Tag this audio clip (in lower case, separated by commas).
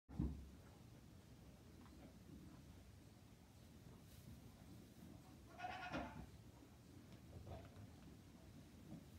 goat bleating